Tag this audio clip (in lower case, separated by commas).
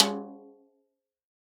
percussion, snare drum, drum, music, musical instrument